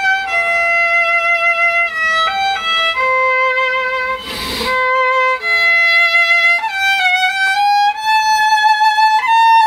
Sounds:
music, musical instrument, fiddle

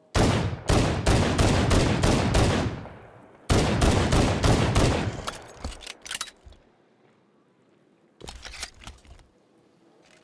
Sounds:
fusillade

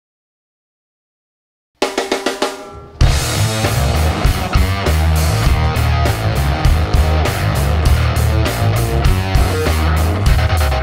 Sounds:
music, guitar, drum roll, drum, snare drum

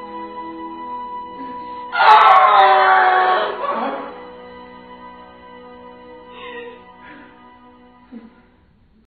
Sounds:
whimper, music

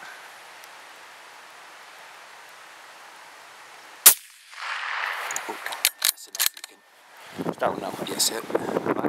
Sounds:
gunfire

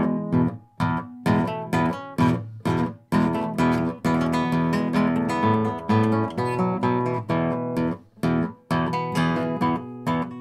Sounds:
music, guitar, plucked string instrument, strum, acoustic guitar, musical instrument

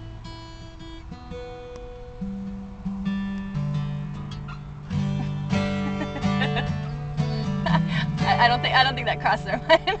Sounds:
music, speech

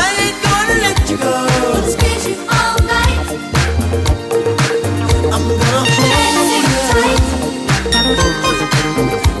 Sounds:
reggae

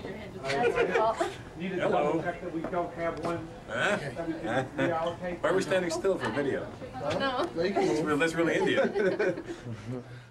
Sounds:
speech

